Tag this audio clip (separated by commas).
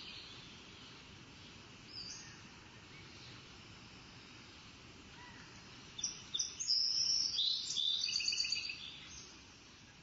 tweet, outside, rural or natural